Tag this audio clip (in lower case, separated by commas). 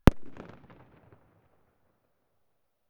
explosion, fireworks